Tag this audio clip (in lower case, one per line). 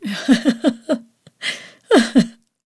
human voice
laughter
giggle